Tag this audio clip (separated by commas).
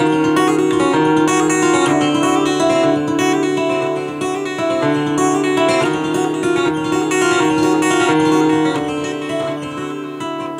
slide guitar, Music